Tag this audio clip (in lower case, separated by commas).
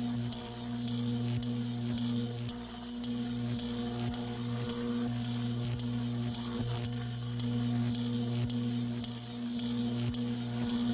music